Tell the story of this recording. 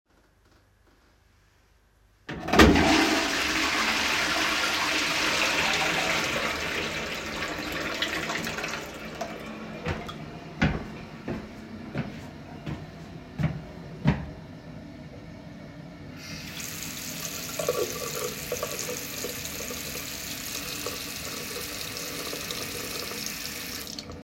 I flushed the toilet, went to the sink, turned on the water, and washed my hands.